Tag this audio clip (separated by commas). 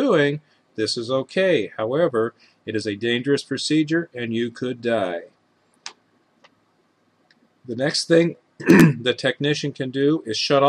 Speech